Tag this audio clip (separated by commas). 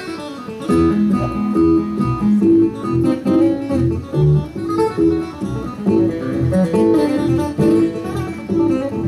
Guitar, Strum, Musical instrument, Acoustic guitar, Music, Plucked string instrument